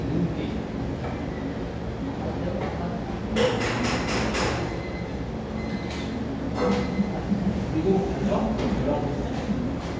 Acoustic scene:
restaurant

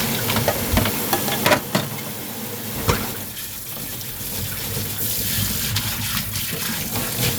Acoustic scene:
kitchen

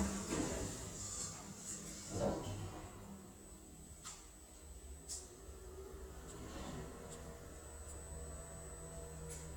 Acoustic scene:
elevator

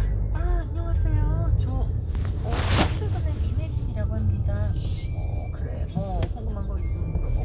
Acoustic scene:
car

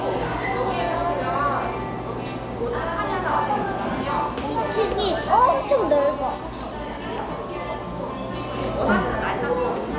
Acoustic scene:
cafe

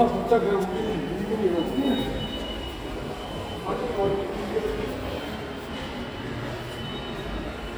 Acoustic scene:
subway station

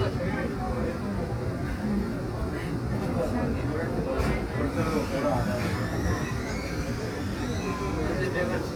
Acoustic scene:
subway train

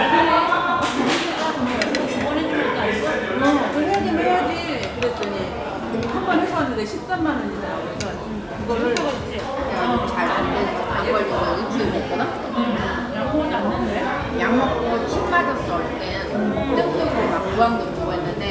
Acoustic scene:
restaurant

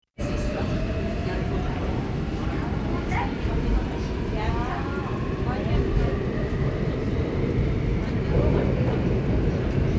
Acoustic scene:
subway train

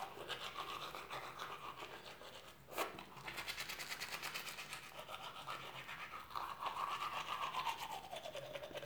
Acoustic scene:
restroom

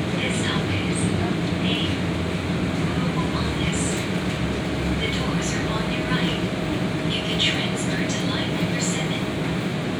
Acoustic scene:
subway train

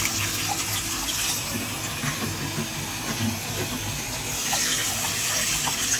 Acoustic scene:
restroom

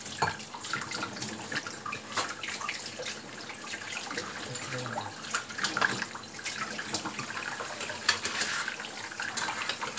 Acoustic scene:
kitchen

